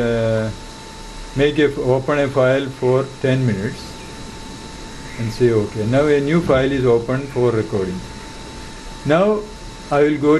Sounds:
speech

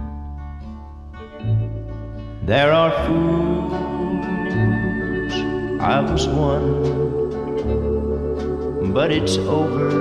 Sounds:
music

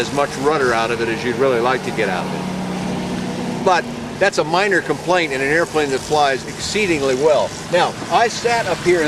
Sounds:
vehicle, outside, urban or man-made, speech

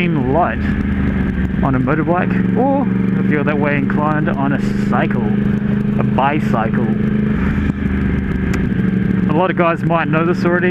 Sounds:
vehicle, motorcycle, speech

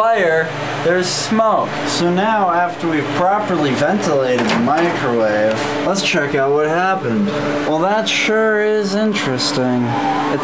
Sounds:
speech

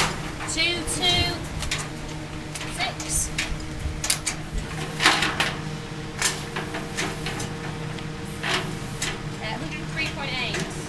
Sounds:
speech

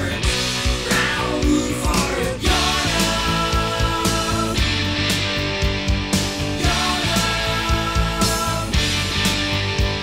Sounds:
music

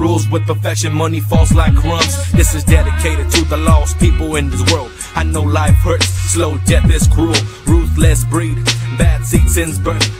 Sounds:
music

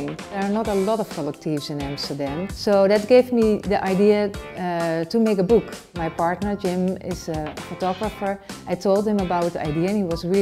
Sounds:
speech, music

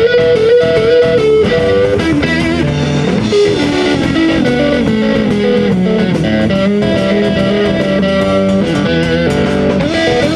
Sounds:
music

